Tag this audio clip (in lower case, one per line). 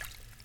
liquid
water
splash